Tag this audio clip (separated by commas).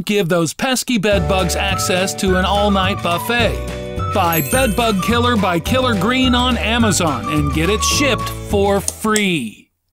Music, Speech